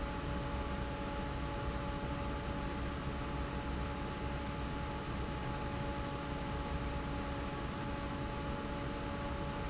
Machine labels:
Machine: fan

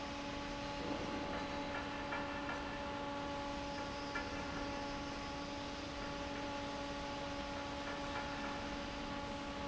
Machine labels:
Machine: fan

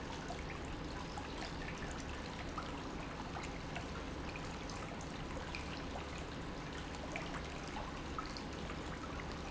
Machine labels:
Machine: pump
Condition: normal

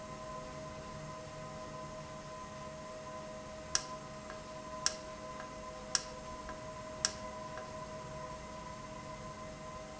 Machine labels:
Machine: valve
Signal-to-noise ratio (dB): 0 dB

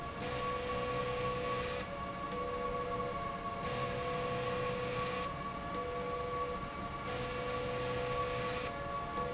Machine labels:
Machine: slide rail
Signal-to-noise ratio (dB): -6 dB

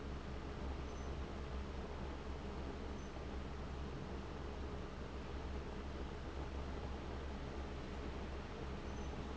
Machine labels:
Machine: fan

